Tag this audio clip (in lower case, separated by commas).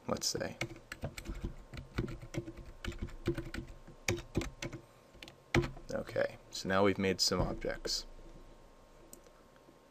computer keyboard